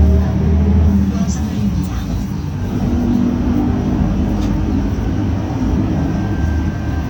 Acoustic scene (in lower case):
bus